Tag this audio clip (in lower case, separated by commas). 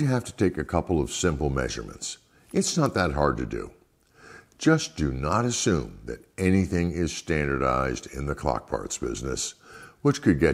speech